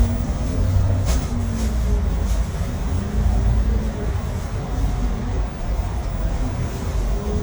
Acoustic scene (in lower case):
bus